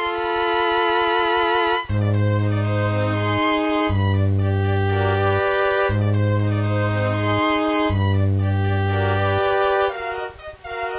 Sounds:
Music, Video game music

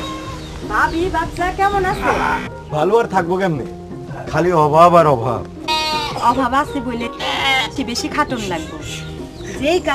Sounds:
Speech, Bleat, Sheep, Music

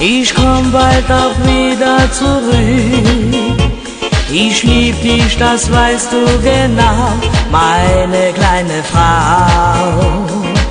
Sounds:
Music

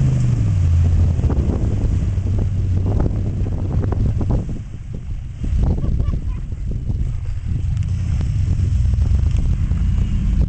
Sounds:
Truck, Vehicle

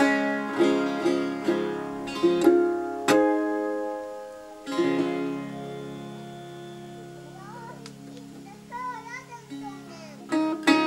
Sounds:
Music, Speech, Guitar, Musical instrument

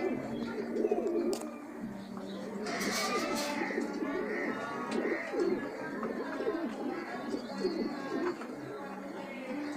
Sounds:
Bird, Speech, Coo, Animal

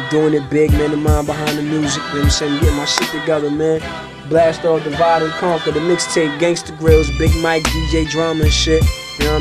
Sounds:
Music, Pop music

